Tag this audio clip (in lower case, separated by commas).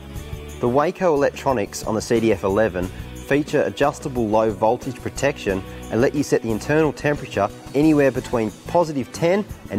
music, speech